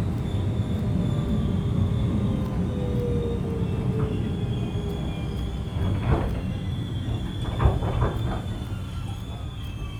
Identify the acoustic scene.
subway train